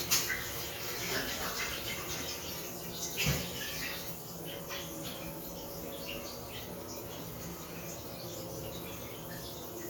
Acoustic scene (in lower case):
restroom